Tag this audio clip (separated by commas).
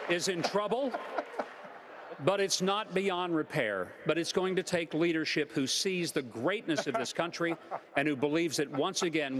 Speech